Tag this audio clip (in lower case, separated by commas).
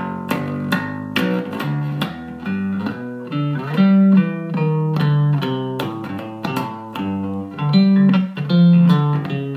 music, inside a small room, musical instrument, guitar, plucked string instrument